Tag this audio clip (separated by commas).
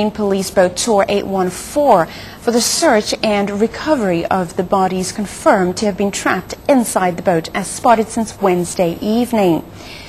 Speech